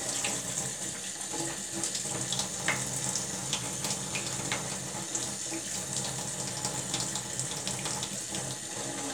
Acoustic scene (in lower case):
kitchen